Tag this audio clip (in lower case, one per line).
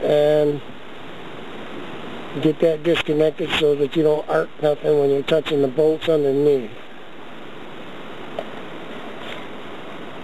engine
speech